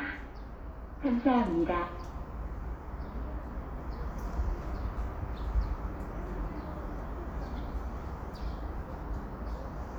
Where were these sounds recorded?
in a subway station